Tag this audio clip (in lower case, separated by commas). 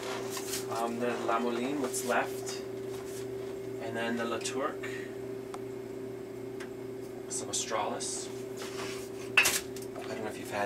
speech